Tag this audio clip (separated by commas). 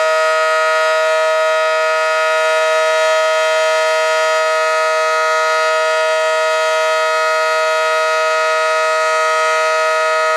Air horn